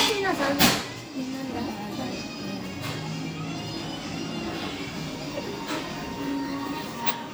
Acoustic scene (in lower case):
restaurant